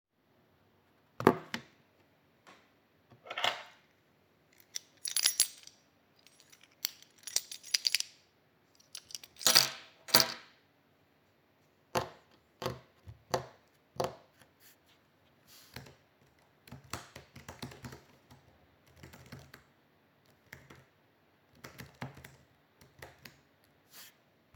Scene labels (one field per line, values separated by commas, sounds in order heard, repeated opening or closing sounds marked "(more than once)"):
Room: office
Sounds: keys, keyboard typing